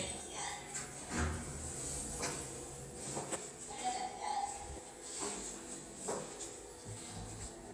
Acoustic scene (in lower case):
elevator